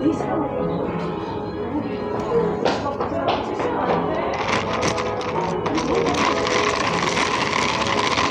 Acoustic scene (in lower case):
cafe